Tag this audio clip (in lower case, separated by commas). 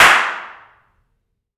clapping, hands